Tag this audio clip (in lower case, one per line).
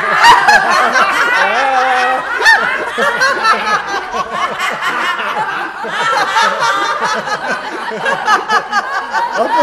speech
snicker
people sniggering